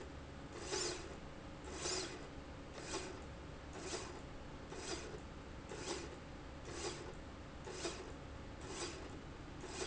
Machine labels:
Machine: slide rail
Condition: normal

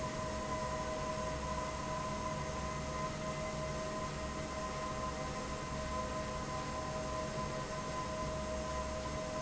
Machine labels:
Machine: fan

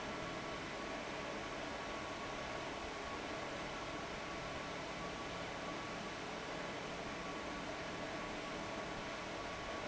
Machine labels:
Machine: fan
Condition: abnormal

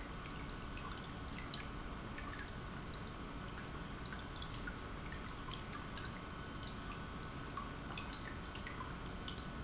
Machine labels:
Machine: pump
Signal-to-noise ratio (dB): 6 dB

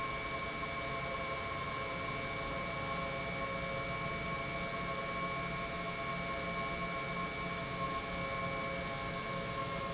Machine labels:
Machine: pump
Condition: normal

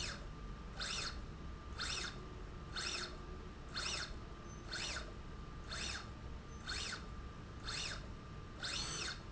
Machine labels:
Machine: slide rail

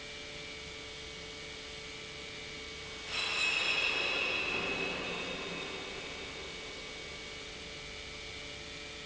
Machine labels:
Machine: pump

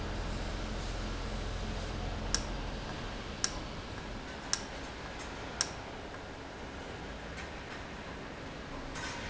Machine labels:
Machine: valve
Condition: normal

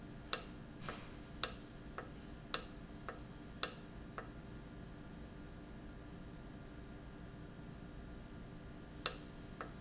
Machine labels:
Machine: valve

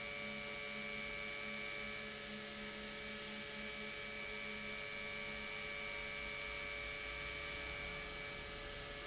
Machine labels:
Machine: pump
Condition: normal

